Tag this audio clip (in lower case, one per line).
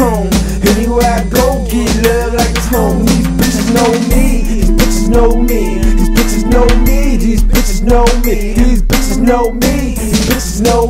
music